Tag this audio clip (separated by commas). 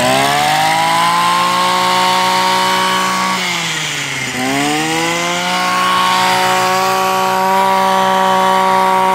hedge trimmer running